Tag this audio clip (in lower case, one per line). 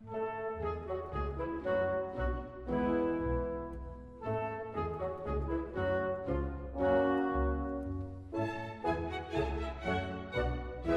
music